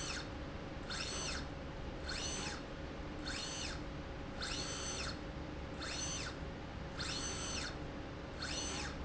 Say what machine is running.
slide rail